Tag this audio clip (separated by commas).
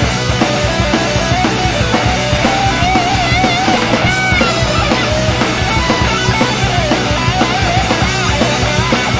Music